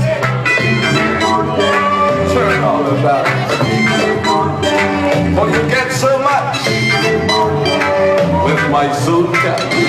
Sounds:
speech, music, reverberation

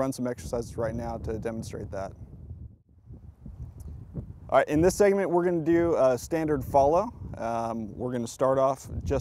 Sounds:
speech

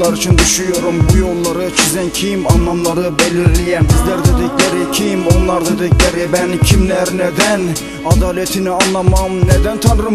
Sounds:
music

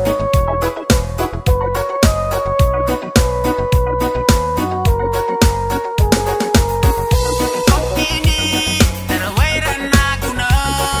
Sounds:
middle eastern music, music

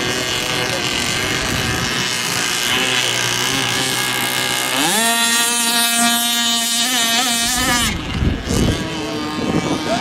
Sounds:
motorboat

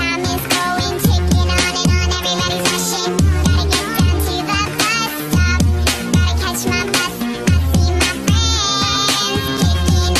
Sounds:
music

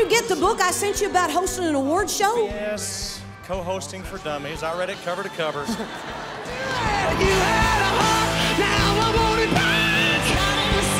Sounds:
music, speech

